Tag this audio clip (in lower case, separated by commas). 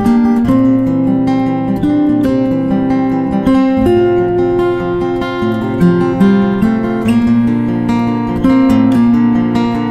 musical instrument, guitar, strum, plucked string instrument, music